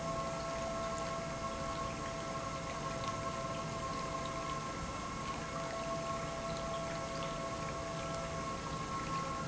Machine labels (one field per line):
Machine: pump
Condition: normal